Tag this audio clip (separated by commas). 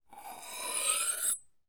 Domestic sounds, Cutlery